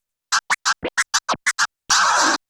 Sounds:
musical instrument
music
scratching (performance technique)

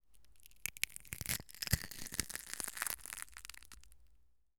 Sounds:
crushing

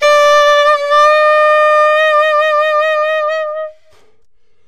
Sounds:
musical instrument
music
woodwind instrument

